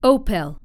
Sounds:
female speech
speech
human voice

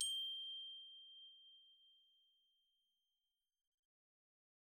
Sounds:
glockenspiel
music
mallet percussion
musical instrument
percussion

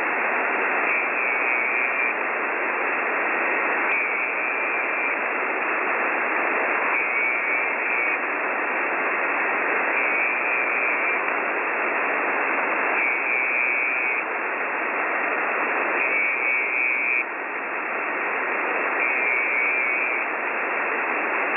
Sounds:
alarm

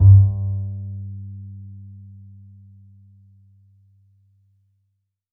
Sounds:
musical instrument
bowed string instrument
music

